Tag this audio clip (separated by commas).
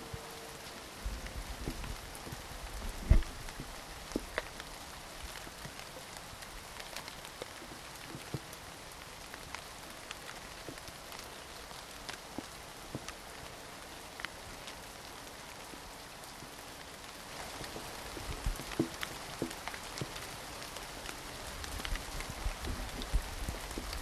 Rain, Water